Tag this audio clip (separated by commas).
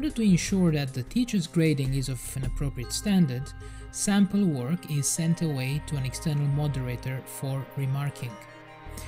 Narration